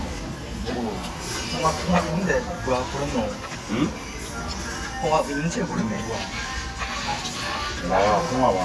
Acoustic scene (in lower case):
restaurant